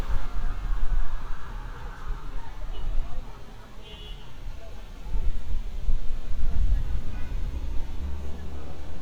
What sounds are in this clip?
car horn